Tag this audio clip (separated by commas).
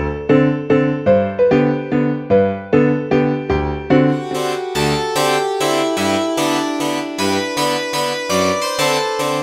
playing harpsichord